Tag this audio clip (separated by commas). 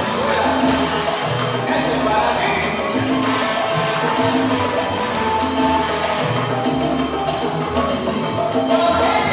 Music